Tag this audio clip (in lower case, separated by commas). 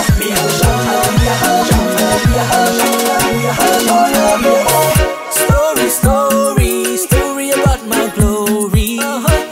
music